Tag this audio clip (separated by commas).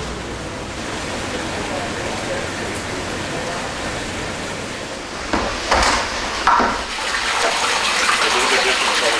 Speech, Liquid